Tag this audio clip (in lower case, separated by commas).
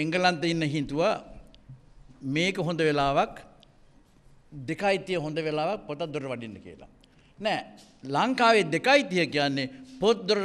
monologue, male speech, speech